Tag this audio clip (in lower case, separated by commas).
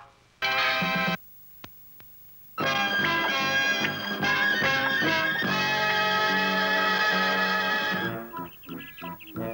music, speech